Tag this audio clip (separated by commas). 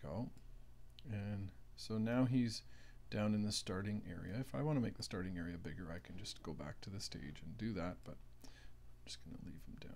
Speech